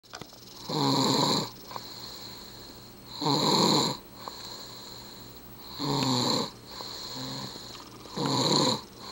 Faint vibrations mixed with snoring